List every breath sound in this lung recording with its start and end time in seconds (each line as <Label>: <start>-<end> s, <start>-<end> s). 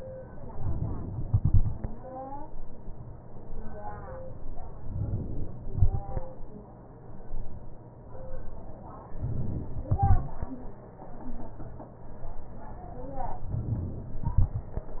Inhalation: 0.51-1.23 s, 4.65-5.66 s, 9.13-9.93 s, 13.45-14.28 s
Exhalation: 1.23-2.44 s, 9.93-11.13 s